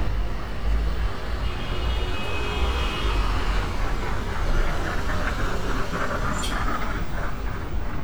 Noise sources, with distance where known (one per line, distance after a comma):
medium-sounding engine, near
car horn, far